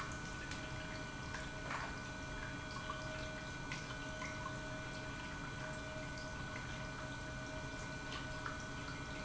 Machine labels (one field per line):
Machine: pump